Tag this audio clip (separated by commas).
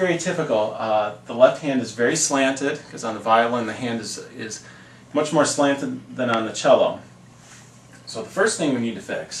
Speech